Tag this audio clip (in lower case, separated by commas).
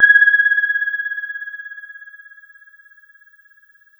music, musical instrument, keyboard (musical), piano